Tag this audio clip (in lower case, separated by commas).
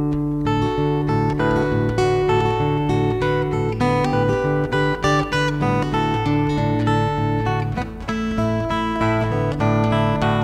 music